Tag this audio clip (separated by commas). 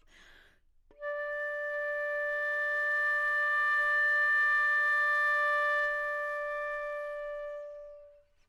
woodwind instrument, Music, Musical instrument